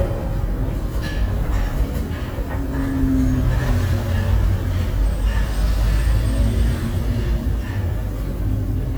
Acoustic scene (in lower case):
bus